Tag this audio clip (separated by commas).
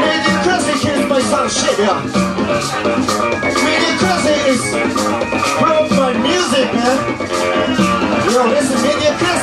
Speech, Music